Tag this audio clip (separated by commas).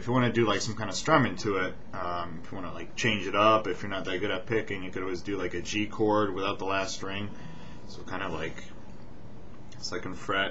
Speech